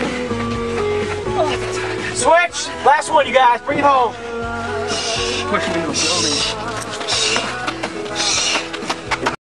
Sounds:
music
speech

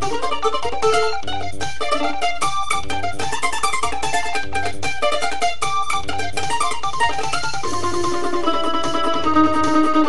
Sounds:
plucked string instrument
music
guitar
musical instrument
mandolin

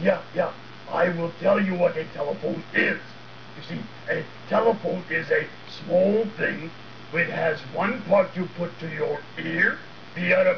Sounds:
speech

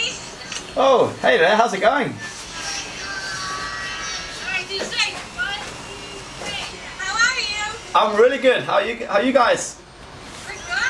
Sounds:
speech

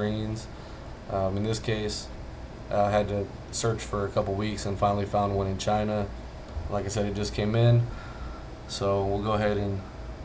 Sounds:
speech

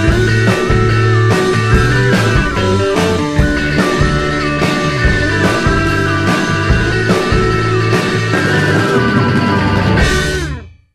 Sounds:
soundtrack music
music

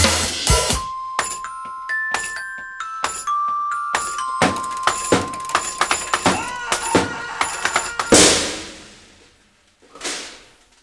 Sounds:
glockenspiel
marimba
mallet percussion

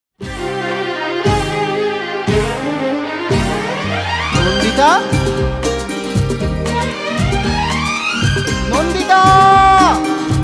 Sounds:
music of bollywood

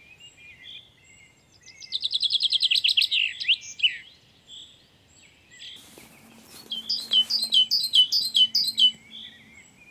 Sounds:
black capped chickadee calling

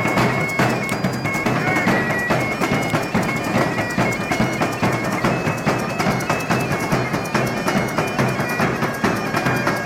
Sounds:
playing bagpipes

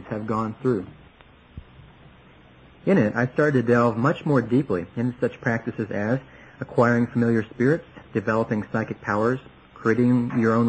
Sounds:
speech

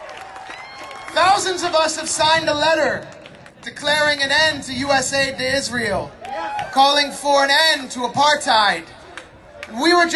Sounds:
speech
man speaking
narration

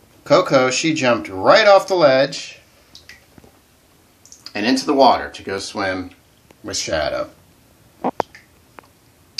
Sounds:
speech

